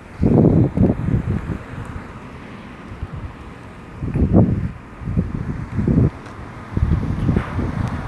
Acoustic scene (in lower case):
residential area